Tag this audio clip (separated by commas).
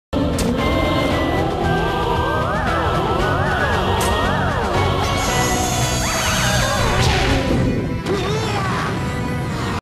Music